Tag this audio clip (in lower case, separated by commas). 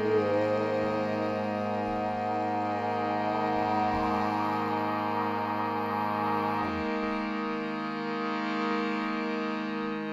music